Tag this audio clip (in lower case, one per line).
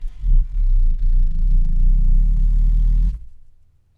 animal
growling